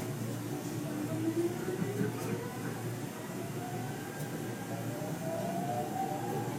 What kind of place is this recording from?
subway train